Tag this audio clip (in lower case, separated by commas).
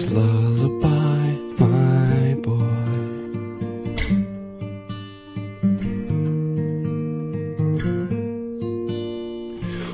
music